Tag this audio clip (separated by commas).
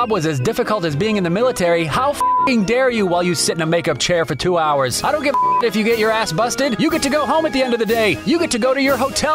Music, Speech